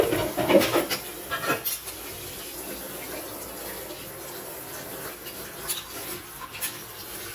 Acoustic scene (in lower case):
kitchen